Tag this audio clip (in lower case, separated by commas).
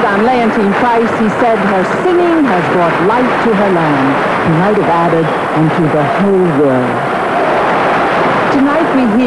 speech